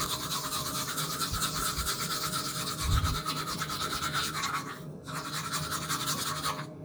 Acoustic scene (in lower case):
restroom